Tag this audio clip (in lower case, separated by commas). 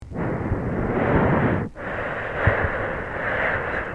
breathing, respiratory sounds